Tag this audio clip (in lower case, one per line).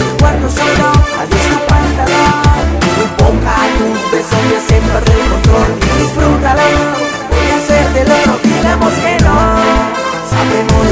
music